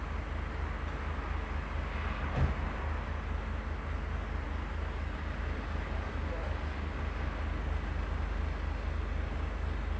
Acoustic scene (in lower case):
residential area